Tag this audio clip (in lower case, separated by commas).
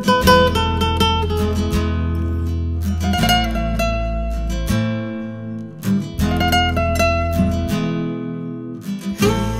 music